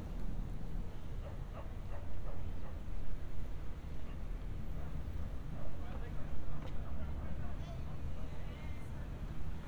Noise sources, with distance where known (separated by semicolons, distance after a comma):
person or small group talking, far; dog barking or whining